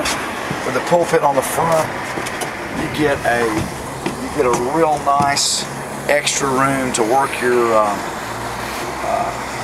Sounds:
vehicle
boat
outside, rural or natural
speech

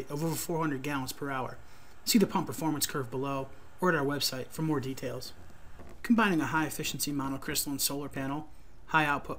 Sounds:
speech

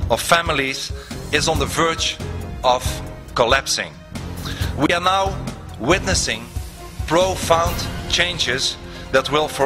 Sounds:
speech
male speech
music

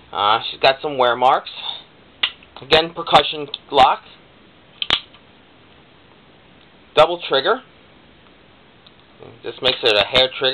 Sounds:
speech

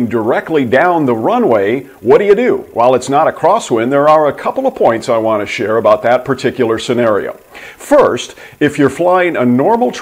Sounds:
speech

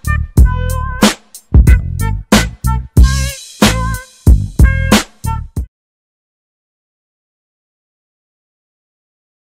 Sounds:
music

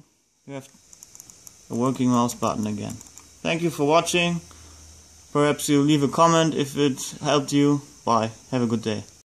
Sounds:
speech

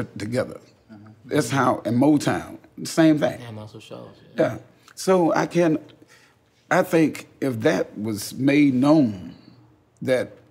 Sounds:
speech

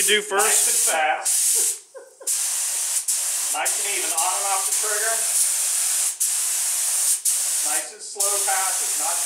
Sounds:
speech
inside a small room

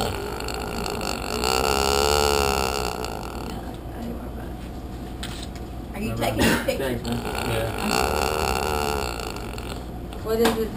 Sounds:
oink
speech

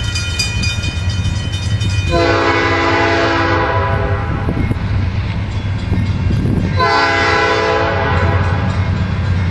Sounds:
outside, urban or man-made
train
honking
vehicle

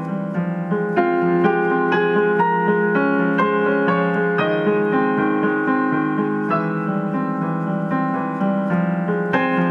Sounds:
music

